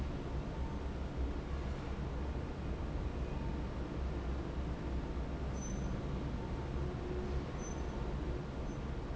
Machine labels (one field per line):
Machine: fan